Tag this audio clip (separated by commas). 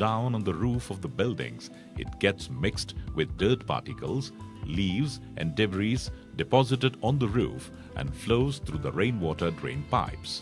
Music, Speech